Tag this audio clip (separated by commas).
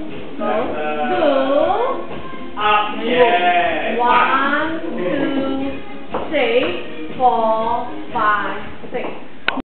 Music, Speech